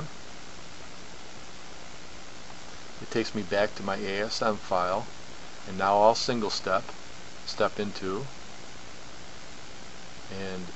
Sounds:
speech

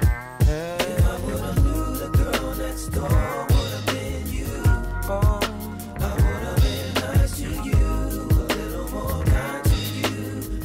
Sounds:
tender music, music

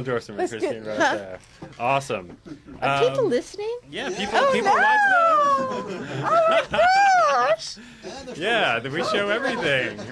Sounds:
snicker, speech, chortle, people sniggering

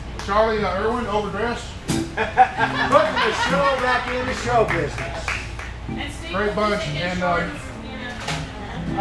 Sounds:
music, slide guitar, speech

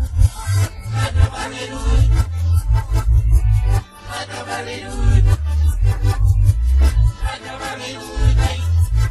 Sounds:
music

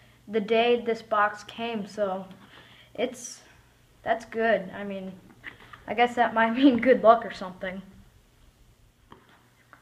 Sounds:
computer keyboard, speech

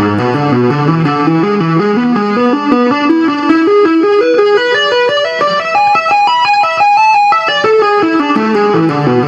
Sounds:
music, tapping (guitar technique)

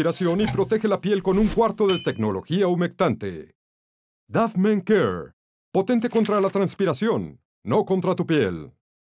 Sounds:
speech

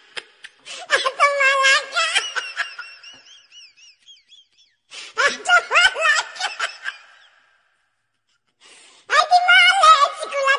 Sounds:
baby laughter

